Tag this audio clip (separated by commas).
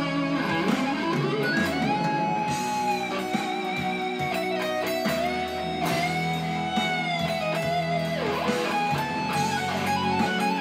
Musical instrument, Plucked string instrument, Electric guitar, Guitar, Strum, Acoustic guitar, Music